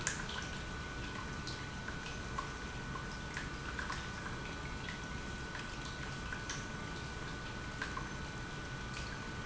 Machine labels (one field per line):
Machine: pump